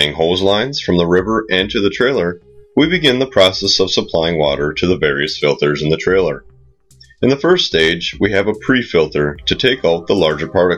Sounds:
music, speech

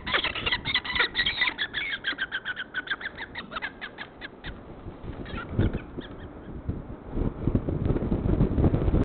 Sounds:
bird

